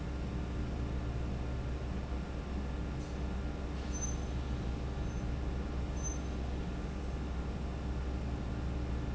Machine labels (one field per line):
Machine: fan